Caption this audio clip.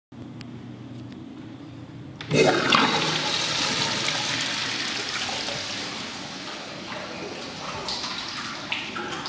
A toilet is flushed